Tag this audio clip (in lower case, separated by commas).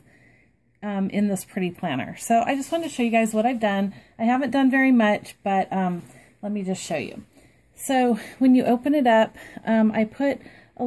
speech